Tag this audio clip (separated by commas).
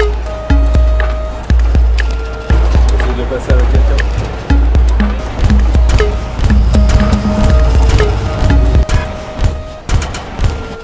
Music, Vehicle, Speech